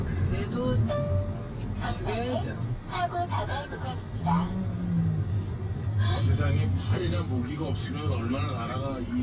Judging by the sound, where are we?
in a car